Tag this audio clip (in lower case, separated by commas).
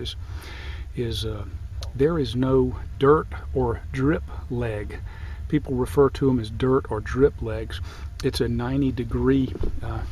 speech